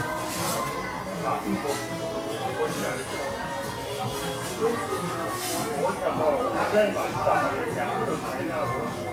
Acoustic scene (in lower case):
restaurant